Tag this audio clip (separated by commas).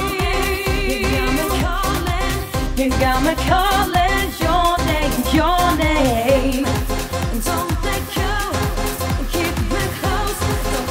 Singing, Music